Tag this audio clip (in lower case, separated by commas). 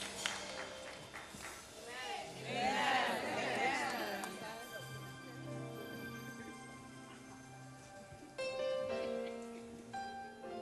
music, speech